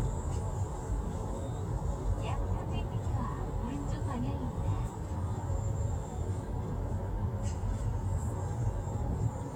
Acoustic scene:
car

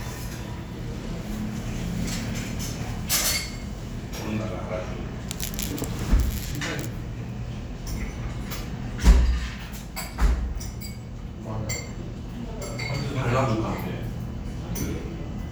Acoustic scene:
restaurant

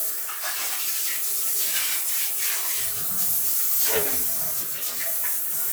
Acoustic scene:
restroom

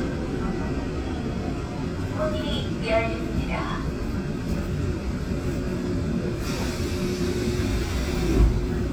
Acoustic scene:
subway train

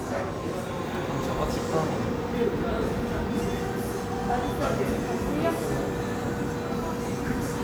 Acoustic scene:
cafe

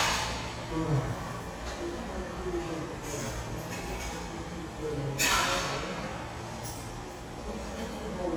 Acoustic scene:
subway station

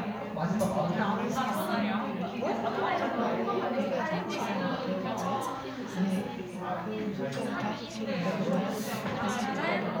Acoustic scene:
crowded indoor space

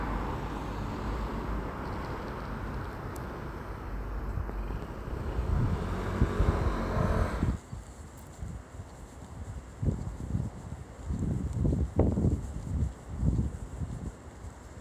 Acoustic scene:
street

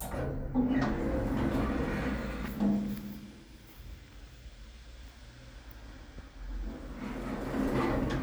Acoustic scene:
elevator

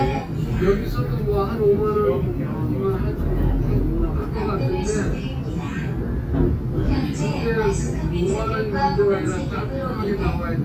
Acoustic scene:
subway train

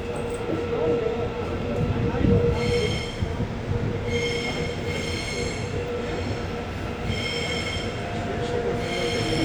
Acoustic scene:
subway train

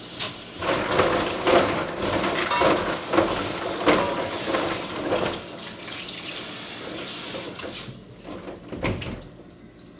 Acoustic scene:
kitchen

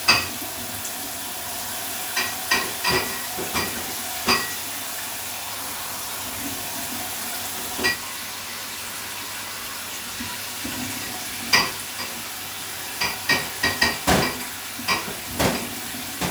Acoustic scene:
kitchen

